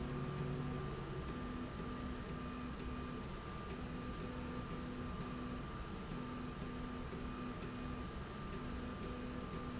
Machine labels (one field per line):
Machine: slide rail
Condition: normal